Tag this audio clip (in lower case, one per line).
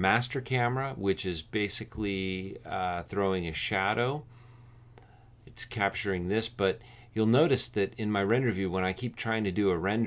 speech